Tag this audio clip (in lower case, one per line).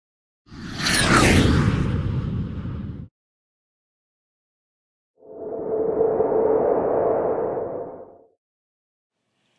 inside a small room
speech